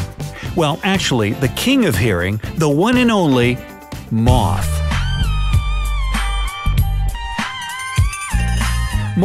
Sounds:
mosquito buzzing

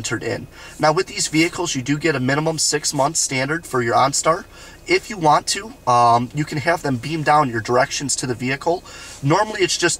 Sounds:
speech

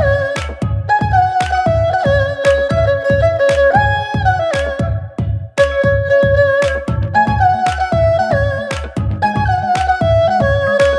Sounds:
playing erhu

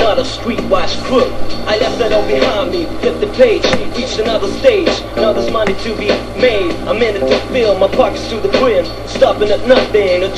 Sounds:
music, background music

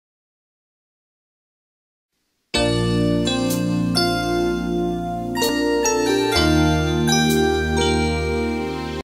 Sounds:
music

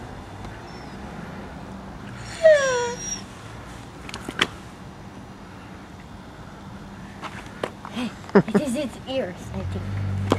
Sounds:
speech

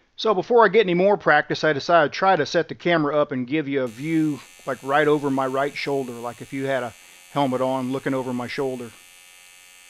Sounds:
arc welding

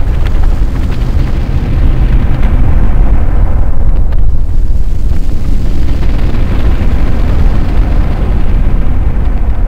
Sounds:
boom

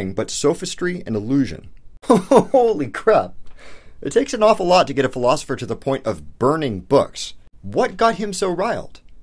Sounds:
speech

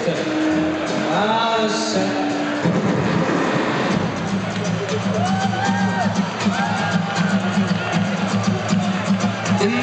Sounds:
music, speech

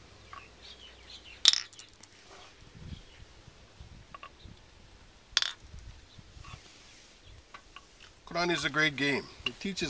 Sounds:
speech, outside, rural or natural

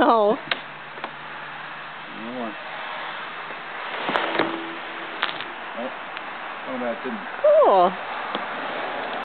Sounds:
speech

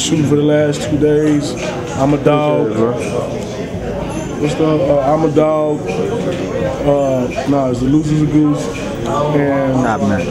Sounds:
speech

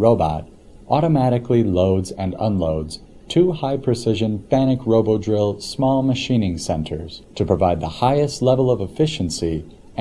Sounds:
speech

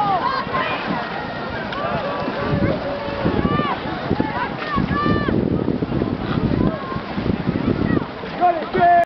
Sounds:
vehicle, boat, speech

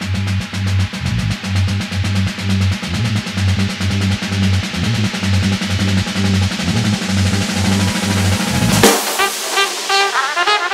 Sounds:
cymbal

